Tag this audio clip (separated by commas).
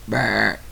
Burping